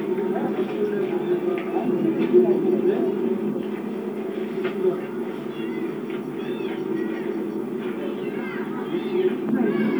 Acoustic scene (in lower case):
park